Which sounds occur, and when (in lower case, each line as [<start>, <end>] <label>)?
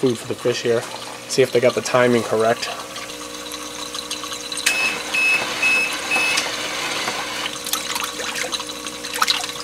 [0.00, 0.81] man speaking
[0.00, 9.63] pump (liquid)
[1.25, 2.82] man speaking
[4.55, 4.70] generic impact sounds
[4.63, 4.94] beep
[4.64, 7.47] mechanisms
[5.10, 5.41] beep
[5.57, 5.92] beep
[6.08, 6.40] beep
[6.31, 6.45] generic impact sounds